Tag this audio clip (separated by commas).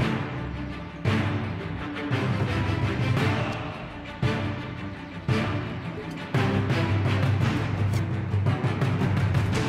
Music